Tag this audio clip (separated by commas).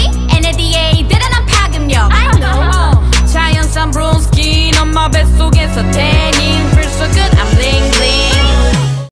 Music